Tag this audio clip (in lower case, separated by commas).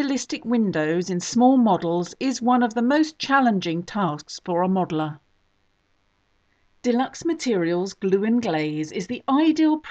speech, narration